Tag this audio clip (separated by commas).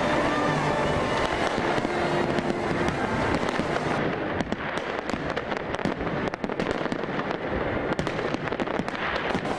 fireworks banging, Fireworks